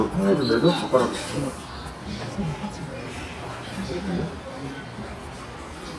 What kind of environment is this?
restaurant